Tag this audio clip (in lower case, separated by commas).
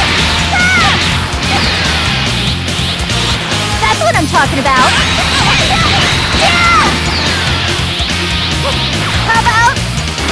music, speech